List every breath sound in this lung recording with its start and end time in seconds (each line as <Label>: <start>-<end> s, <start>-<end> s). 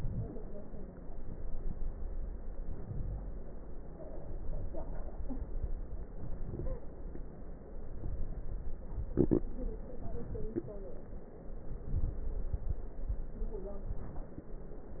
Inhalation: 2.52-3.59 s, 6.09-6.92 s, 11.68-12.71 s
Crackles: 2.52-3.59 s, 6.09-6.92 s, 11.68-12.71 s